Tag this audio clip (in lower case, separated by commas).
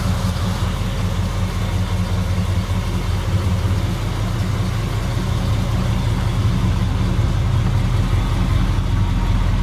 car, vehicle